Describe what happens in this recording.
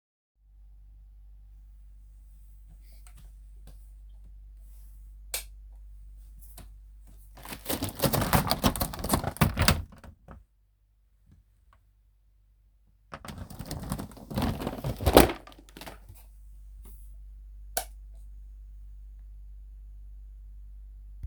Turning the light switch on and opening the door.